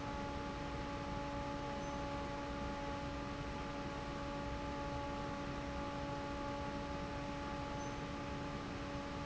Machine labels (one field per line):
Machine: fan